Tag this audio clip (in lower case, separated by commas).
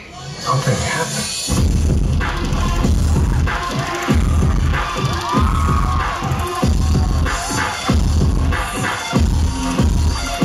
electronica, music